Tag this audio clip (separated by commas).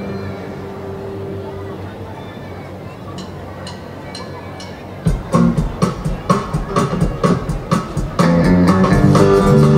Electronic music, Speech, Music